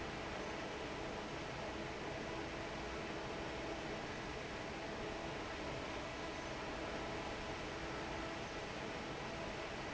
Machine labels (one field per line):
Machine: fan